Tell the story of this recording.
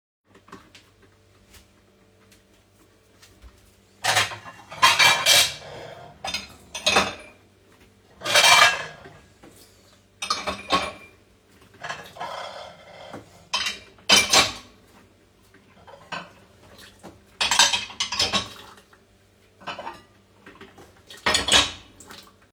I first started the coffee machine and while it was making coffee I started putting dishes into dishwasher.